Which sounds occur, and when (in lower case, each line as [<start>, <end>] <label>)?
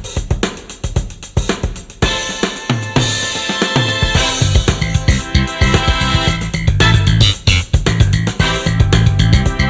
[0.00, 9.65] music